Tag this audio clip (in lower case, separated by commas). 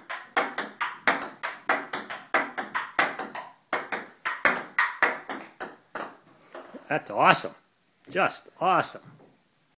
speech